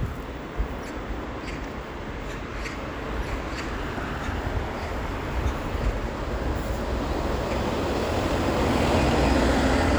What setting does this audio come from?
street